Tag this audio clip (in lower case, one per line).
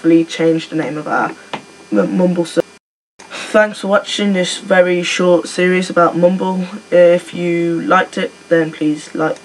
speech